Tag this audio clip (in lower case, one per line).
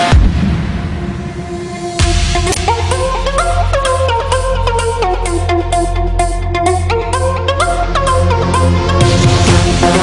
music